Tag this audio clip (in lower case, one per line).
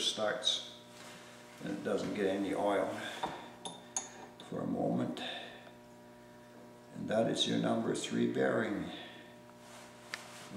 speech